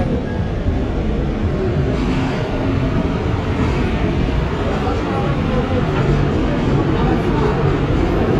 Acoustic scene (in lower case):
subway train